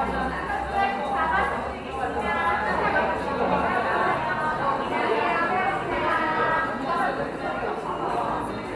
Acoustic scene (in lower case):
cafe